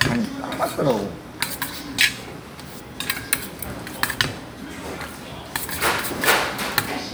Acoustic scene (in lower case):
restaurant